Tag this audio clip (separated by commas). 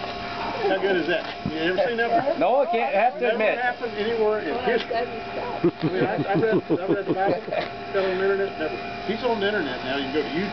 Speech